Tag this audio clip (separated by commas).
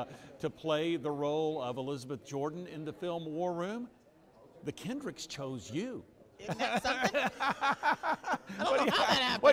Speech